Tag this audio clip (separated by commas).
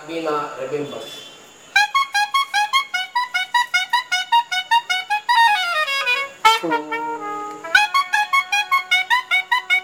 Brass instrument, Musical instrument, Music, Speech